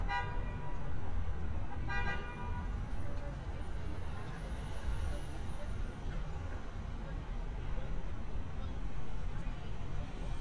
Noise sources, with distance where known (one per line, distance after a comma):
car horn, near
person or small group talking, far